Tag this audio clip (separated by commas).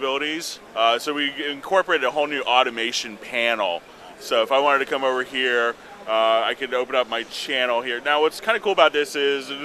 Speech